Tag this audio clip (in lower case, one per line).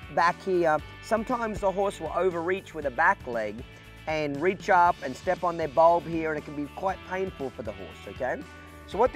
music
speech